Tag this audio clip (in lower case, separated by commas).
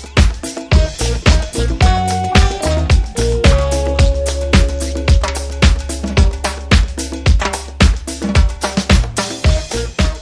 music